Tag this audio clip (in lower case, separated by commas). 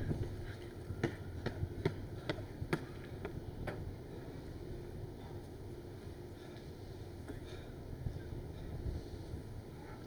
run